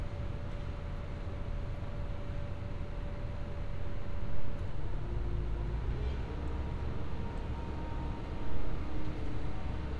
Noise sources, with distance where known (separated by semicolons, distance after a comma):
engine of unclear size